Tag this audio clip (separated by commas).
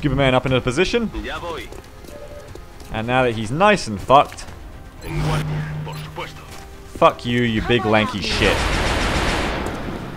Fusillade, Speech, Music